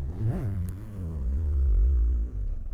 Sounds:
home sounds
zipper (clothing)

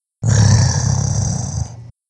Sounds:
animal

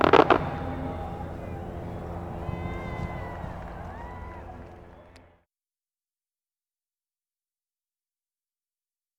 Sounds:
fireworks
human group actions
cheering
explosion
crowd

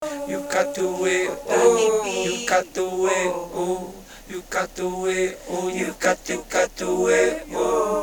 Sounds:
human voice

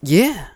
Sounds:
human voice
male speech
speech

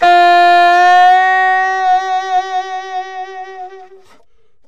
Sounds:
music
musical instrument
woodwind instrument

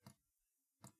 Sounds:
drip
liquid

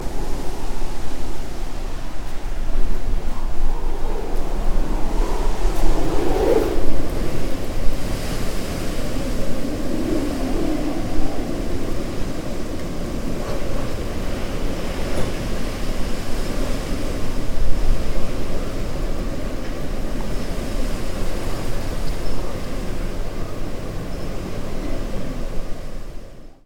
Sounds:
wind

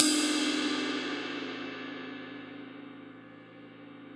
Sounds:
musical instrument
music
cymbal
crash cymbal
percussion

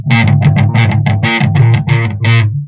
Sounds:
guitar
musical instrument
music
plucked string instrument

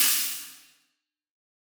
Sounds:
musical instrument
cymbal
percussion
hi-hat
music

